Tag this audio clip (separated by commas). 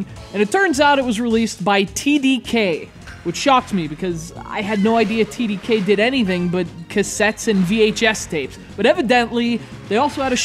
Music, Speech